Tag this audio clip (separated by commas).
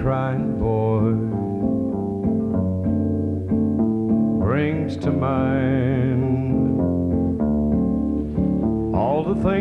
Country, Music